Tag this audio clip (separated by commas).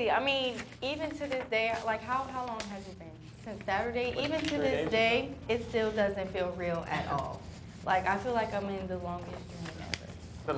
Speech